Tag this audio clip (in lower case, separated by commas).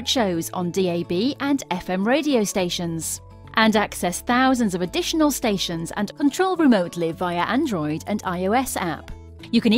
music, speech, radio